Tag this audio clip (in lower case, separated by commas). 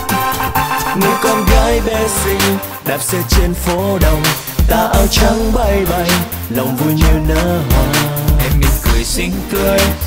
independent music, music